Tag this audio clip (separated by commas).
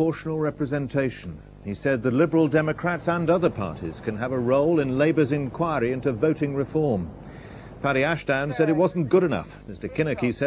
Speech